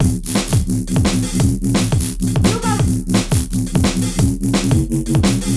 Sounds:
Percussion, Drum kit, Music, Musical instrument

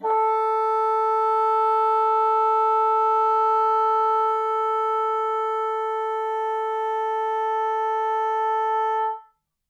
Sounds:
Musical instrument, Wind instrument, Music

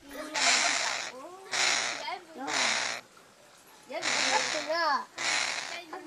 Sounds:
Wild animals, Bird, Animal

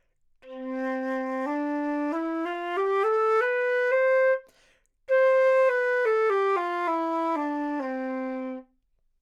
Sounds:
Wind instrument, Musical instrument, Music

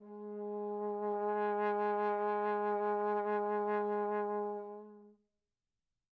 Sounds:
Musical instrument, Brass instrument, Music

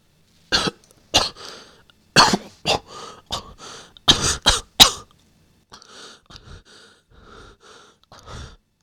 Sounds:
Cough, Respiratory sounds, Human voice

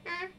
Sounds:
Human voice, Speech

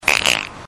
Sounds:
Fart

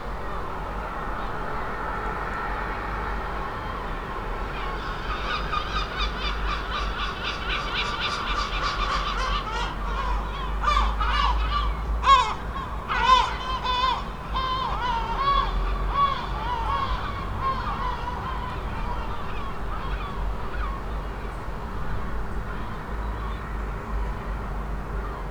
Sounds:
Wild animals, Gull, Animal, Bird

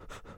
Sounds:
Respiratory sounds, Breathing

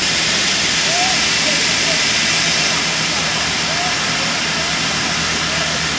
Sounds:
Fire

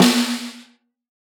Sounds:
Drum, Musical instrument, Music, Snare drum, Percussion

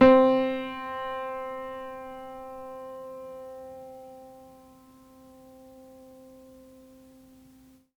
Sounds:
Musical instrument, Music, Keyboard (musical), Piano

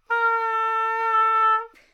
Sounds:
Musical instrument, Wind instrument, Music

